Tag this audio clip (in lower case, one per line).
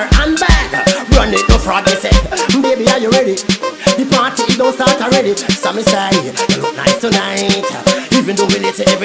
music
pop music
funk